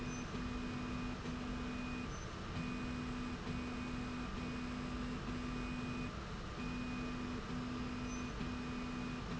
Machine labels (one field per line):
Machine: slide rail